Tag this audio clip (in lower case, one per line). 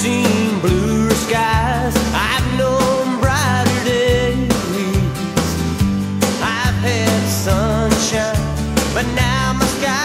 music